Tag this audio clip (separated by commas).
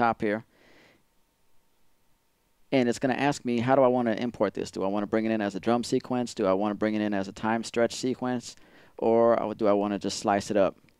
Speech